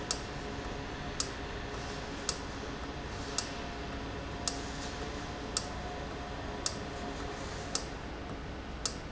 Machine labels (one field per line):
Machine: valve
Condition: normal